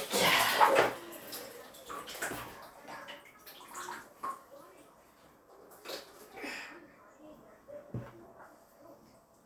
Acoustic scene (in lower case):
restroom